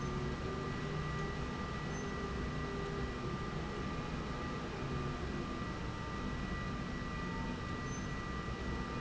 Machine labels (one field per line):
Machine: slide rail